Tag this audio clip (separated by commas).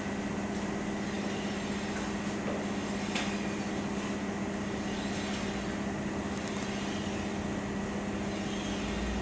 inside a large room or hall